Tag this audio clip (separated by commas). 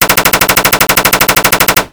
Explosion, Gunshot